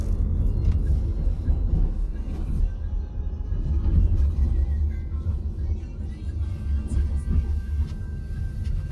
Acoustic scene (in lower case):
car